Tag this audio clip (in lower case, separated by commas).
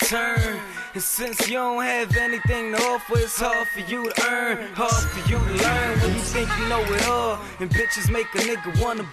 music